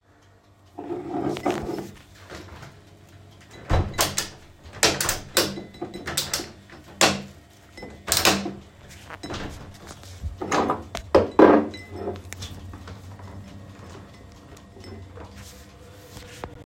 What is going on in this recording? I opened the kitchen window and then closed it again. While doing this, I moved some dishes on the counter.